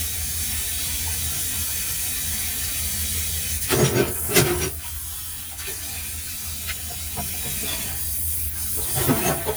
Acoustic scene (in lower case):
kitchen